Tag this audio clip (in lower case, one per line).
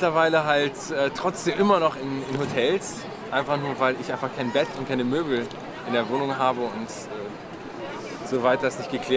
speech babble
speech